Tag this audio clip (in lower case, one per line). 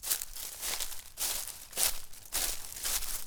walk